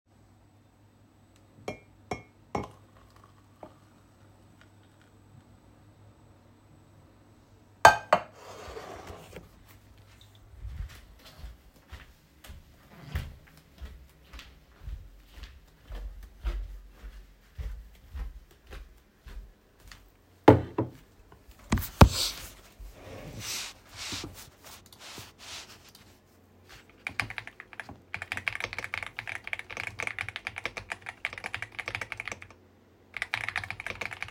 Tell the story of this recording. I pour myself coffee and start going towards my room. I then start typing on my keyboard.